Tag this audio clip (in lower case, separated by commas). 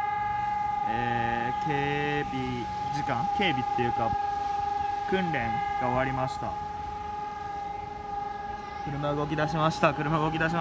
civil defense siren